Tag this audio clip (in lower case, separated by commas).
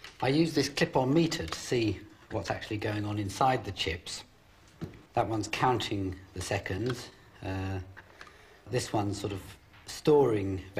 speech